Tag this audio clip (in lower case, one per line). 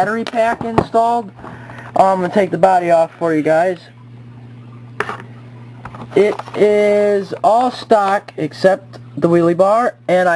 speech